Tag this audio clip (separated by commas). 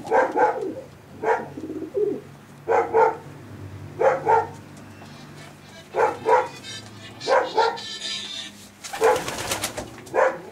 dove, Bird, Coo, bird call